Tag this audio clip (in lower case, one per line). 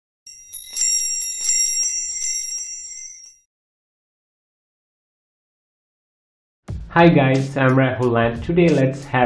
tinkle